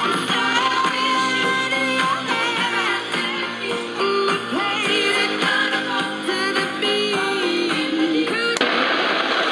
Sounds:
music
radio

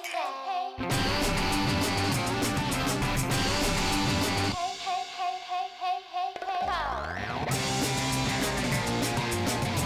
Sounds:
music

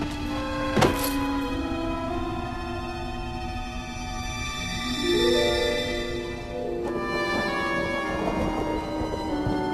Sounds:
music

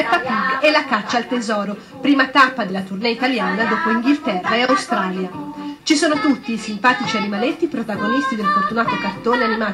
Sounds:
music
speech

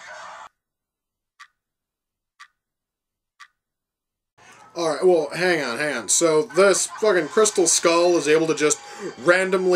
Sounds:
speech
inside a small room

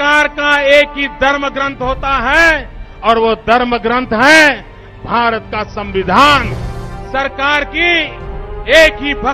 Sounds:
narration
music
man speaking
speech

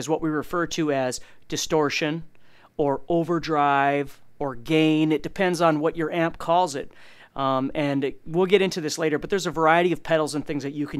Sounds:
speech

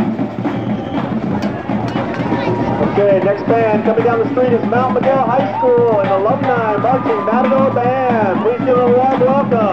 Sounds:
speech
music

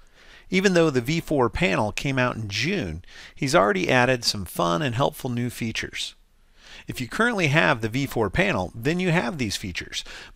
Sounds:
speech

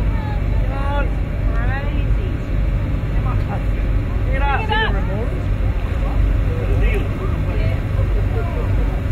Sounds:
speech
water
slosh

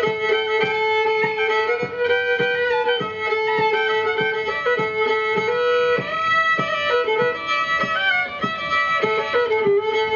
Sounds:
violin
music
musical instrument

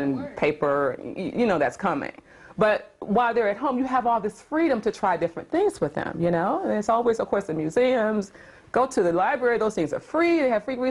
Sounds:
speech

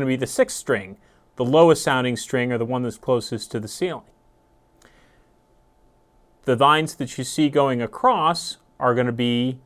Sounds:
speech

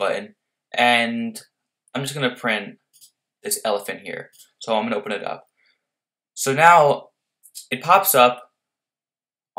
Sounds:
speech

